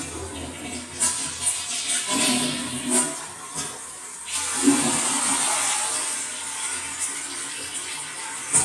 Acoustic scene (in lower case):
restroom